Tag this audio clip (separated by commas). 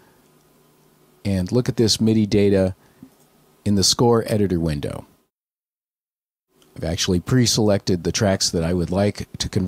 Speech